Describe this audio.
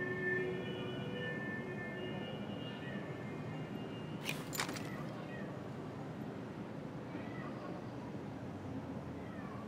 A distant siren sounds while a cat meows followed by a gun locking